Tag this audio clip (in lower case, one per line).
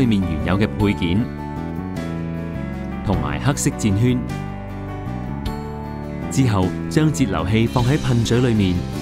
music
speech